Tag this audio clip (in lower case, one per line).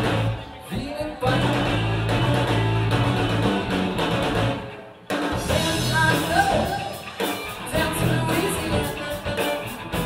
independent music
music
pop music